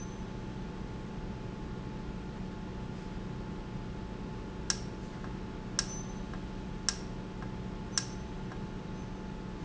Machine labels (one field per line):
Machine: valve